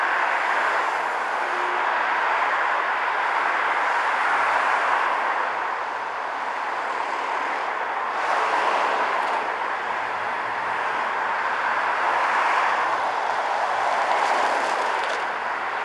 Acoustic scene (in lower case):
street